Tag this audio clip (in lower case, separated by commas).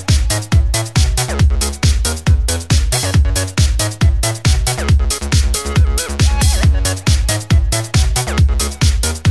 music